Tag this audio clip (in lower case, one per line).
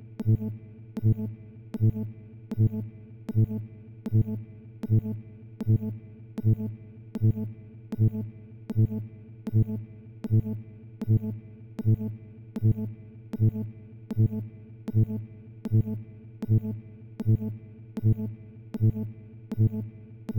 alarm